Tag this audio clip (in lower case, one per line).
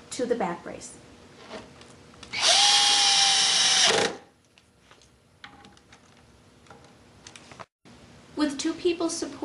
speech
inside a small room
tools